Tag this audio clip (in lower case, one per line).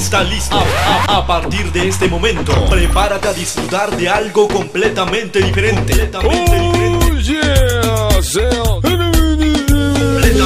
music
music of africa